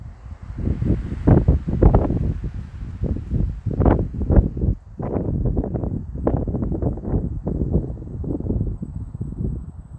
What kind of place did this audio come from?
residential area